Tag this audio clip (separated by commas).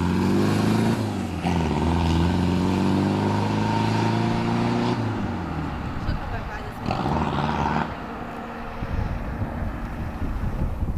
Vehicle, Truck, Motor vehicle (road), Engine, outside, urban or man-made, Speech